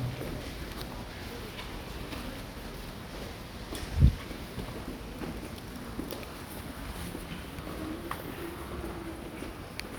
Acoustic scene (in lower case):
subway station